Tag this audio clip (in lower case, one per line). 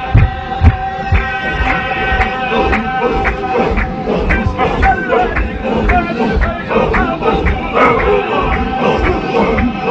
mantra
music